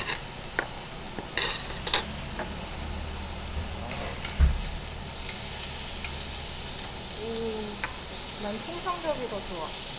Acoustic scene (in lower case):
restaurant